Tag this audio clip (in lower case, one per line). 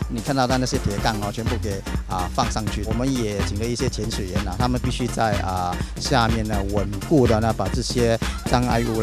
speech
music